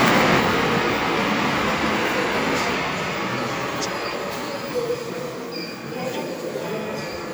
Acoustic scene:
subway station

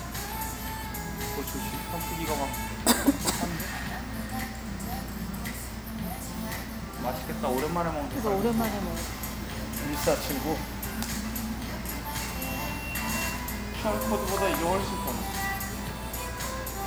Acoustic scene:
restaurant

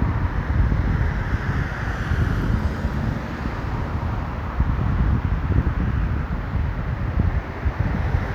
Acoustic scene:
street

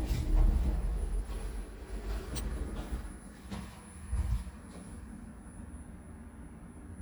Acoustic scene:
elevator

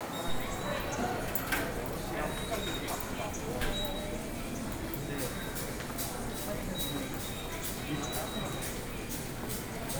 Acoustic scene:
subway station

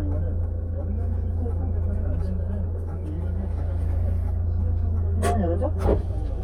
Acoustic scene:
car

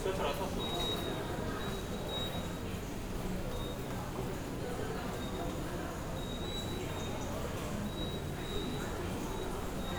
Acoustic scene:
subway station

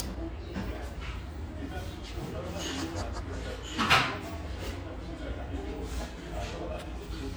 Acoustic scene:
restaurant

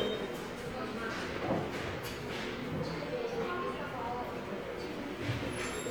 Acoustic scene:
subway station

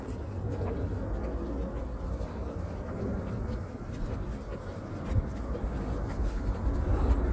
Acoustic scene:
park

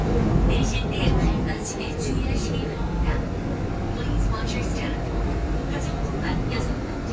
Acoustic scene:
subway train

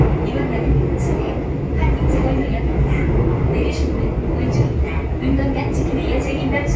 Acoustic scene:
subway train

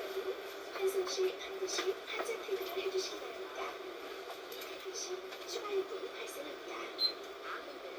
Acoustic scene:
bus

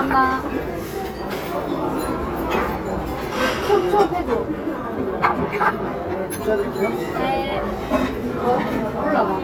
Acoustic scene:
crowded indoor space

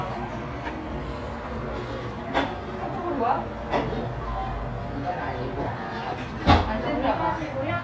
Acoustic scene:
cafe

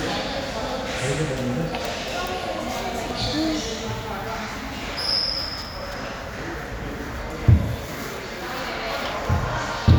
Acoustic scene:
crowded indoor space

